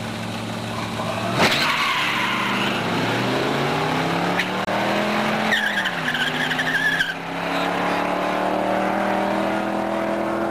Vehicle's tires skidding and squealing